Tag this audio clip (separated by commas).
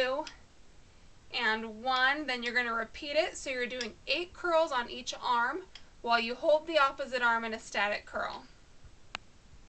Speech